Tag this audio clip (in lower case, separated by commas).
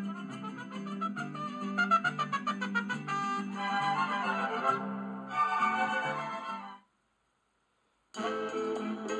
television, music